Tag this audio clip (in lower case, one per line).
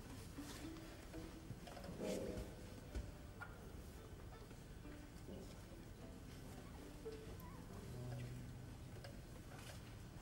musical instrument